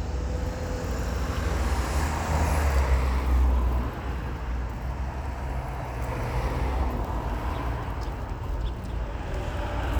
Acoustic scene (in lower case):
street